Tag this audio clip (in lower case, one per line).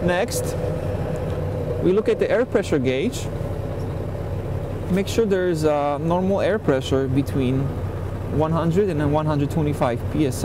speech